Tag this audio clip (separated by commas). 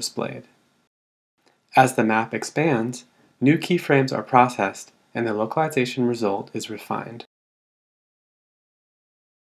Speech